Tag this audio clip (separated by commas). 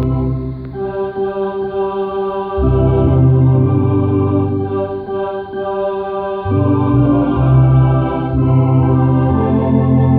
Hammond organ, playing hammond organ, Organ